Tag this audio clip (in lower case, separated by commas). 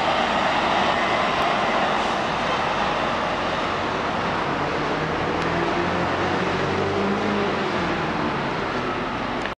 vehicle, bus